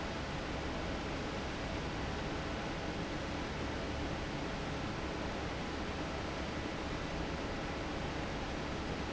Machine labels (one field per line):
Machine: fan